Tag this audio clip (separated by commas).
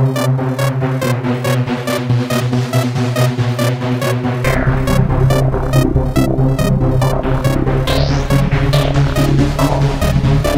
Electronic music, Music